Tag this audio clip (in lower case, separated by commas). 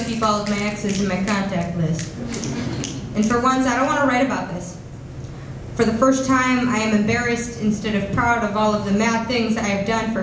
speech